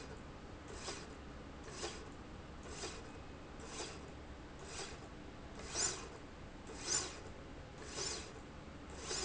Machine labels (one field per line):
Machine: slide rail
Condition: normal